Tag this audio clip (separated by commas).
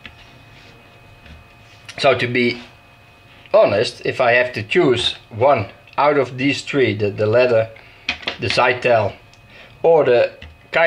Speech, Tools